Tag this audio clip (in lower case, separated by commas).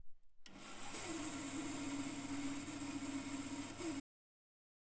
sawing, tools